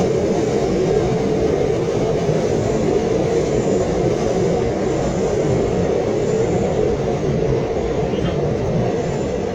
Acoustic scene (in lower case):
subway train